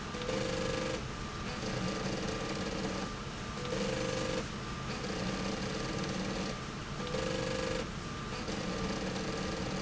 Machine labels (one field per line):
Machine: slide rail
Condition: abnormal